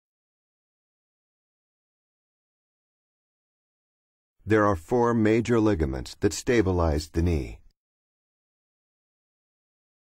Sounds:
Speech

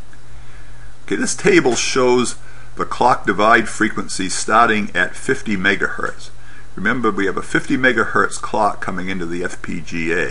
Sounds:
Speech

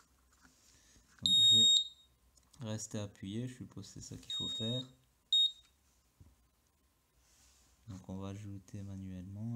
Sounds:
smoke detector beeping

